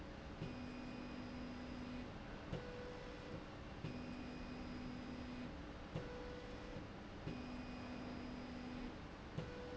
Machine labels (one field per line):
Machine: slide rail